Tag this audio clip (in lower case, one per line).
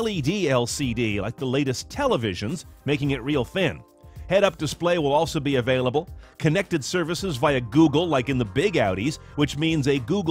music
speech